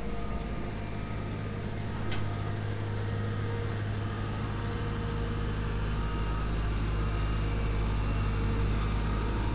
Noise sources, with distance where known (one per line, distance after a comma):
reverse beeper, far